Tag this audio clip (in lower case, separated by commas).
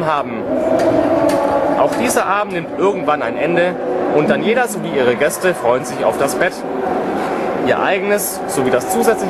sliding door, speech